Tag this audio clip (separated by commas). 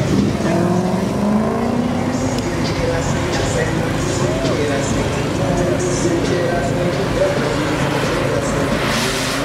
Car, Vehicle